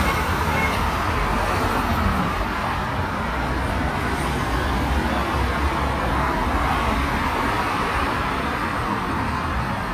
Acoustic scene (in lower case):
street